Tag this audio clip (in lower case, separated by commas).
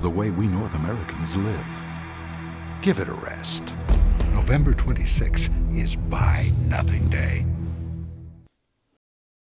music, speech